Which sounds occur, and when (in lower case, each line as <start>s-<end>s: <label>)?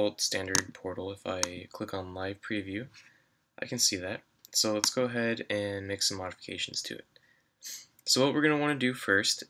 0.0s-2.9s: male speech
0.0s-9.4s: background noise
0.5s-0.6s: generic impact sounds
1.4s-1.5s: clicking
2.9s-3.1s: surface contact
3.6s-4.2s: male speech
4.4s-4.4s: clicking
4.5s-7.0s: male speech
4.8s-4.9s: generic impact sounds
7.1s-7.2s: generic impact sounds
7.2s-7.4s: breathing
7.6s-7.9s: breathing
7.9s-8.0s: clicking
8.0s-9.4s: male speech